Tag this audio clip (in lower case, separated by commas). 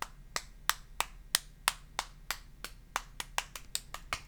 hands, clapping